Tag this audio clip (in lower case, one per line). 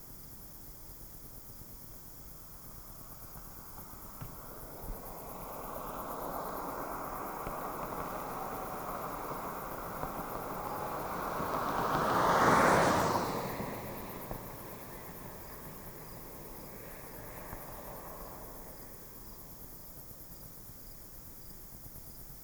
cricket
animal
insect
wild animals